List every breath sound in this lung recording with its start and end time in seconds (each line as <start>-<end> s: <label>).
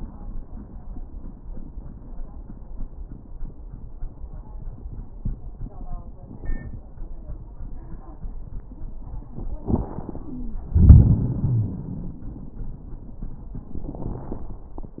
9.62-10.56 s: inhalation
10.28-10.56 s: wheeze
10.77-12.22 s: exhalation
11.22-11.79 s: wheeze